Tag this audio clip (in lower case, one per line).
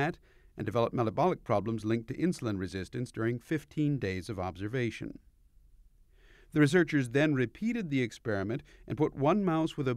speech